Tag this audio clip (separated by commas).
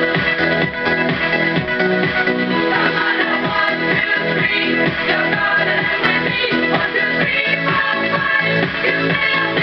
Music